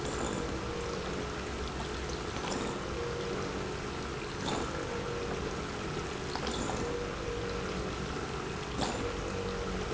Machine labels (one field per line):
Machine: pump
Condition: abnormal